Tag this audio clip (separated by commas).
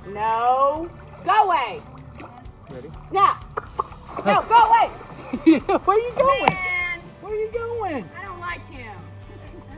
alligators